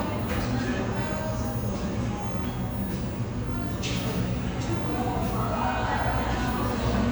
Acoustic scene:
cafe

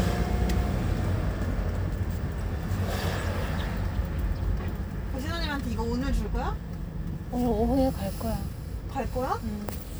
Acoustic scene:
car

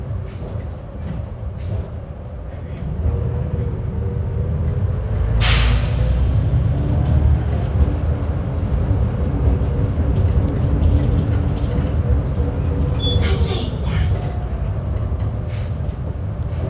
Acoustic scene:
bus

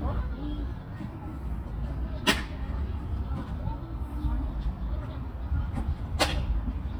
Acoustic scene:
park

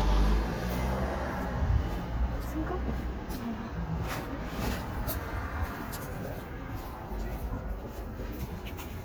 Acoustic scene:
street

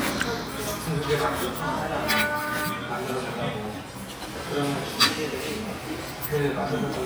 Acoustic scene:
crowded indoor space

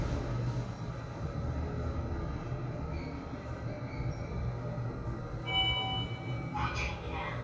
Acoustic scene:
elevator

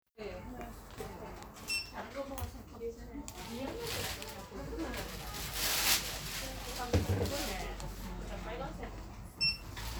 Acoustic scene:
crowded indoor space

